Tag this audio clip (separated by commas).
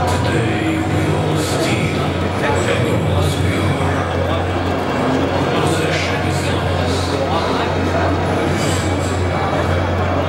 Speech, Crowd